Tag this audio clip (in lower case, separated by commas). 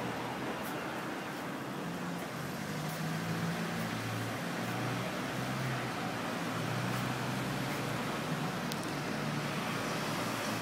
roadway noise